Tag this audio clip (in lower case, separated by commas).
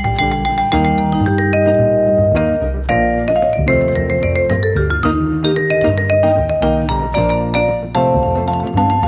vibraphone, music, xylophone